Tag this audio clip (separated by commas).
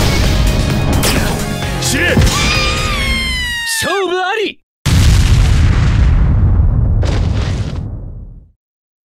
Music, Boom, Speech